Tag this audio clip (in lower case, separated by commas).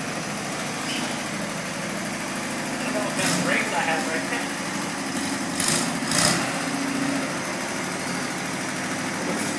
speech, vehicle, engine, lawn mower, truck